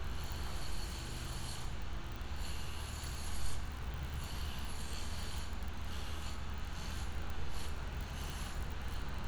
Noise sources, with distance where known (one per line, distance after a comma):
unidentified powered saw